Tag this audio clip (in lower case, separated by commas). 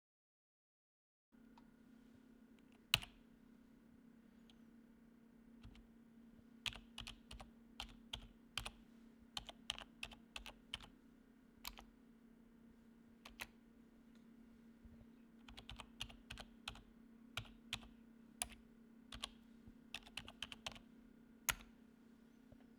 computer keyboard, typing, home sounds